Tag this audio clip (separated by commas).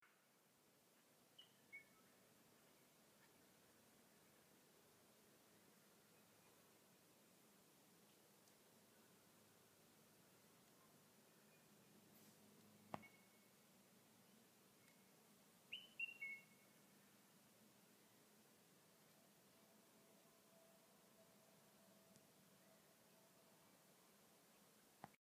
Bird, Bird vocalization, Chirp, Wild animals, Animal